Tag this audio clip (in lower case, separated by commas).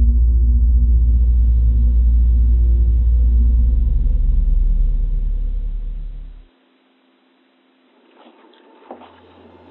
music